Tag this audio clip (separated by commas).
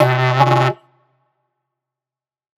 Musical instrument, Music